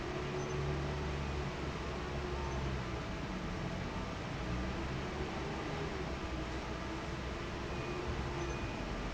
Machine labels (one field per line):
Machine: fan